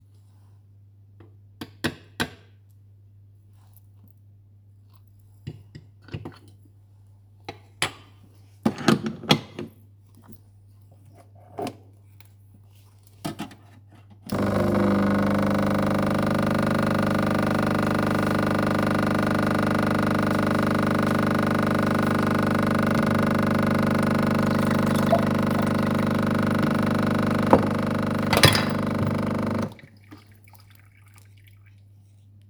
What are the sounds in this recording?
cutlery and dishes, coffee machine